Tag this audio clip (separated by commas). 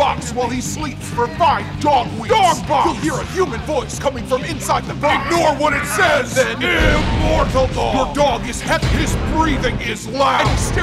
Music, Speech